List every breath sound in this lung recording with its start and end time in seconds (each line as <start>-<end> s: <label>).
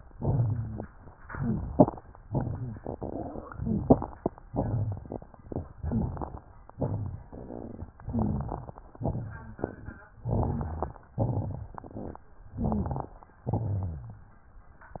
0.00-0.88 s: exhalation
0.00-0.88 s: crackles
1.12-2.00 s: inhalation
1.12-2.00 s: crackles
2.22-3.40 s: exhalation
2.22-3.40 s: crackles
3.45-4.31 s: inhalation
3.45-4.31 s: crackles
4.45-5.31 s: exhalation
4.45-5.31 s: crackles
5.40-6.41 s: inhalation
5.40-6.41 s: crackles
6.71-7.88 s: exhalation
6.71-7.88 s: crackles
7.96-8.92 s: inhalation
7.96-8.92 s: crackles
8.98-10.02 s: exhalation
8.98-10.02 s: crackles
10.14-11.06 s: crackles
10.18-11.08 s: inhalation
11.13-12.18 s: exhalation
11.13-12.18 s: crackles
12.46-13.36 s: inhalation
12.46-13.36 s: crackles
13.42-14.32 s: exhalation
13.42-14.32 s: crackles